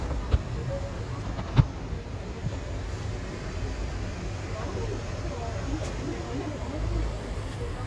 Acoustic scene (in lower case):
residential area